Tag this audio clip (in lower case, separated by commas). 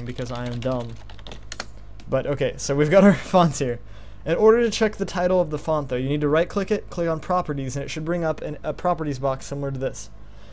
computer keyboard, speech